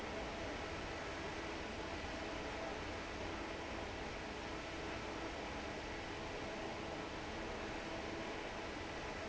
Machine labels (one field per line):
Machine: fan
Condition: normal